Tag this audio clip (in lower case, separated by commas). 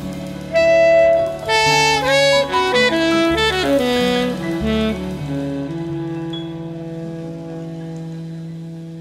saxophone, brass instrument, playing saxophone